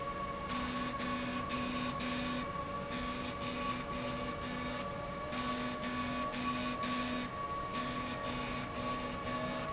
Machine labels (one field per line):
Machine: slide rail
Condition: abnormal